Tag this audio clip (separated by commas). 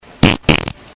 Fart